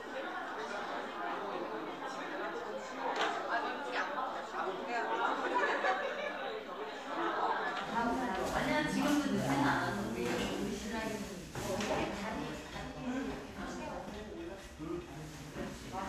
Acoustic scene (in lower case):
crowded indoor space